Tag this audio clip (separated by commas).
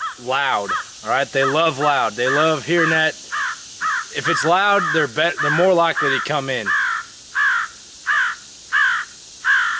Crow, Caw